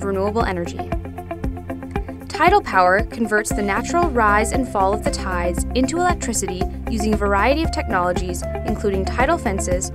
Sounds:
music, speech

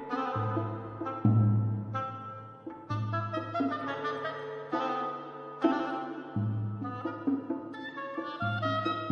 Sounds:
music, percussion

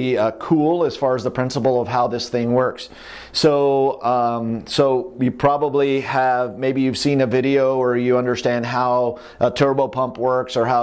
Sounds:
speech

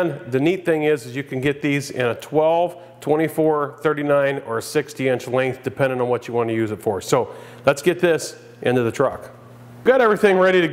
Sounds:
speech

